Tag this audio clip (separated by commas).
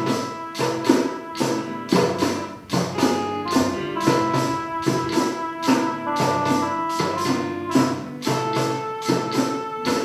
Music, Tambourine